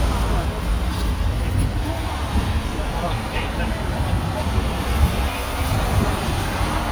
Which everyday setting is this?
street